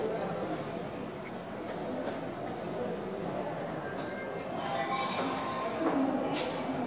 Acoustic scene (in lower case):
subway station